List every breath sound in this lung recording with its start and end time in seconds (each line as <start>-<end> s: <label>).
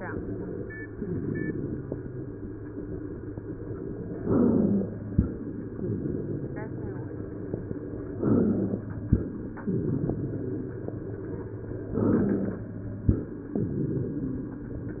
4.21-4.95 s: inhalation
4.21-4.95 s: rhonchi
8.18-8.92 s: inhalation
8.18-8.92 s: rhonchi
11.94-12.68 s: inhalation
11.94-12.68 s: rhonchi